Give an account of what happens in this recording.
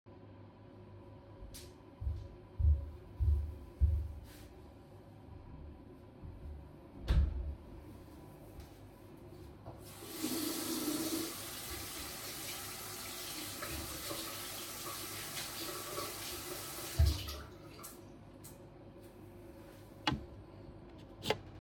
I walked into the bathroom and closed the door.I took a few steps towards the sink and washed my hands. Turned off the water and grabbed my phone.